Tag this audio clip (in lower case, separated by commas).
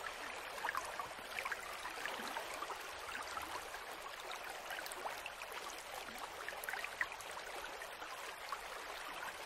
raindrop